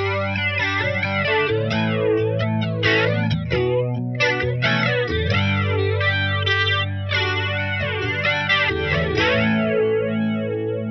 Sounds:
Music

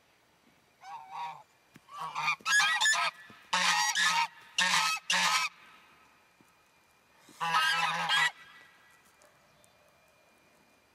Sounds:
goose honking

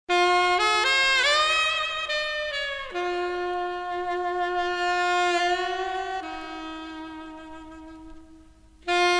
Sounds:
Music

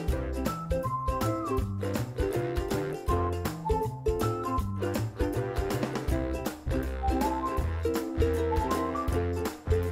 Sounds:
Music

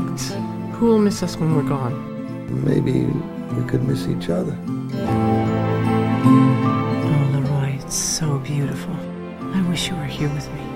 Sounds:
Music, Tender music, Speech

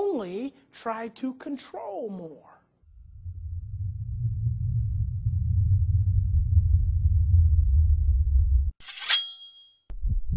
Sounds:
Speech, inside a large room or hall

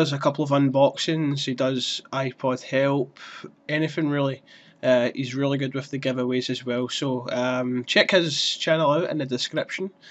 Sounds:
Speech

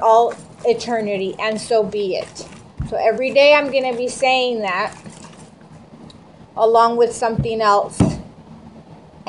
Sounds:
Speech

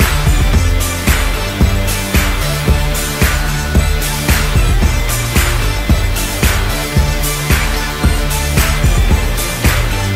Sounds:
Music

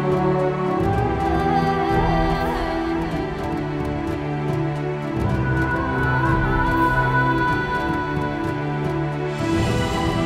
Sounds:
Music

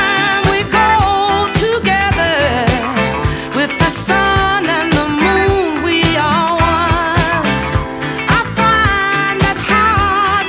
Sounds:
Music

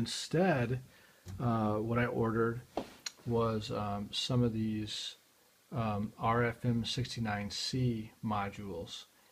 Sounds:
Speech

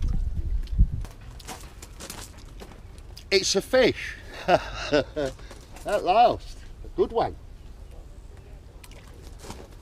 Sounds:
outside, rural or natural, Speech

